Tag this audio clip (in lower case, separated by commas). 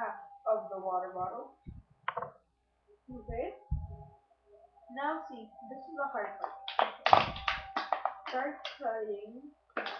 speech, child speech